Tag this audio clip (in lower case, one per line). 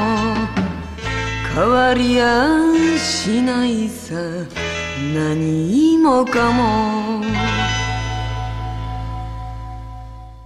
christmas music
music